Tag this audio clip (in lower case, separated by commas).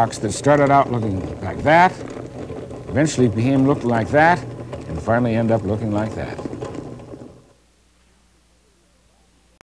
inside a small room, speech